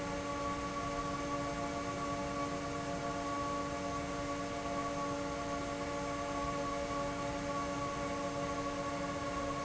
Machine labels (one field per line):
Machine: fan